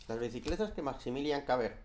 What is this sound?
speech